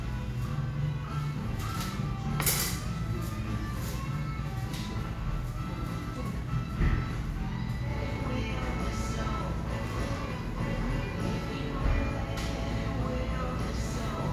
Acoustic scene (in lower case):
cafe